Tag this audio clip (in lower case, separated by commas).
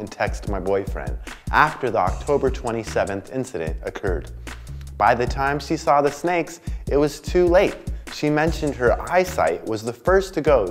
music, speech